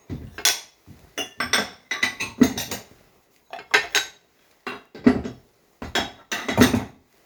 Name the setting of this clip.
kitchen